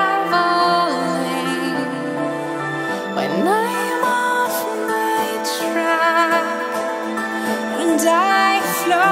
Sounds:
Music

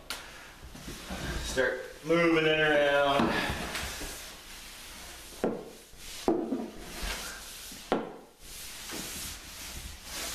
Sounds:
Speech

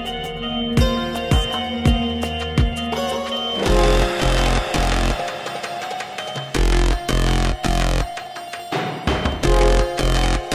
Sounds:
Music

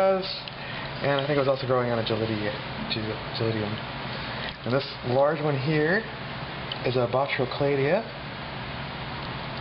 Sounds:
Speech, inside a small room

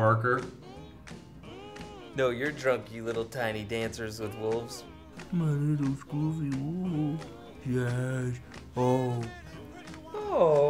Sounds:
Music, Speech

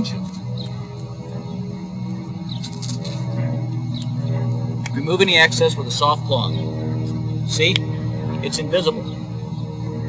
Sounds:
Speech

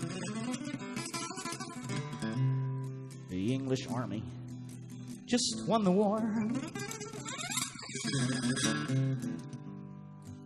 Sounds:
Musical instrument, Plucked string instrument, Speech, Music, Strum, Electric guitar, Guitar

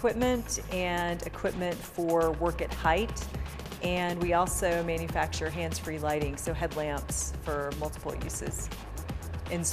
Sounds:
Speech, Music

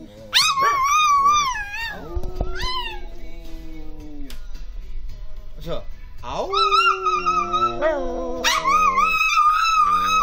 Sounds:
Music, Bow-wow, Speech

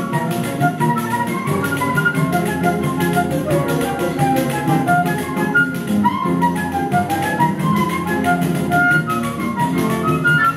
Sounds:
Music

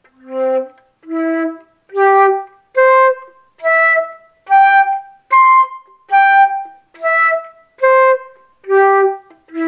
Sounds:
playing flute

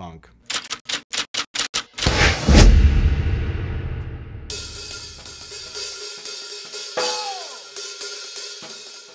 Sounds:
Cymbal, Hi-hat

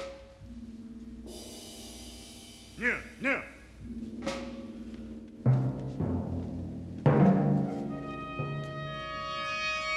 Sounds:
Speech, Music, Timpani

